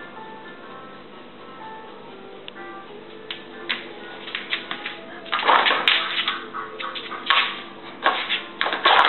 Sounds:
animal, music, domestic animals

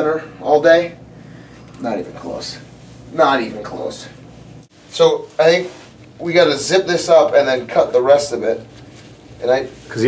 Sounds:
speech

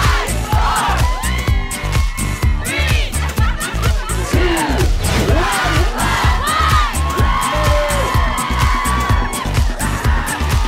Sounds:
speech, music

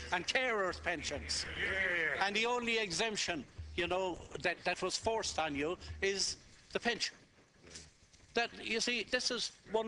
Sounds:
male speech, speech

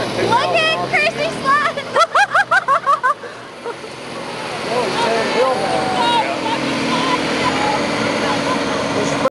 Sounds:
speech, truck, vehicle

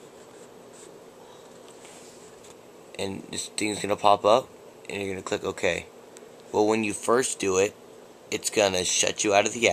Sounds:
speech

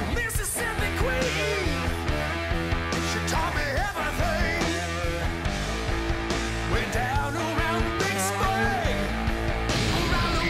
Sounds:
bass guitar, musical instrument, plucked string instrument, music

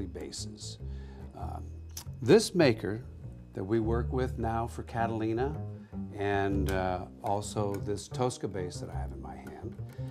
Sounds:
speech

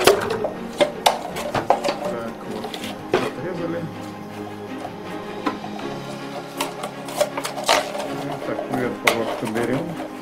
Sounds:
plastic bottle crushing

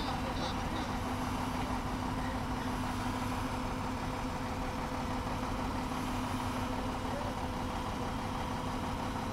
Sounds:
boat, ship

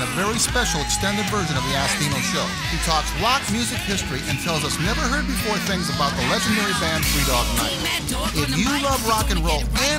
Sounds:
music, speech

